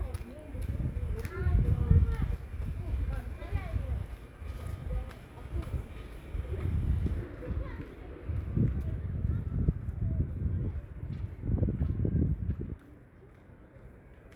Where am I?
in a residential area